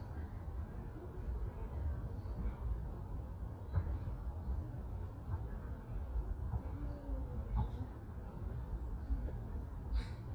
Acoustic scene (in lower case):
park